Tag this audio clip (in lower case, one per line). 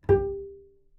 music
bowed string instrument
musical instrument